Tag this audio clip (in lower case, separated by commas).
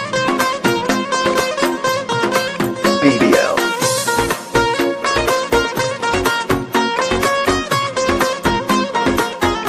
dance music, music, new-age music, jazz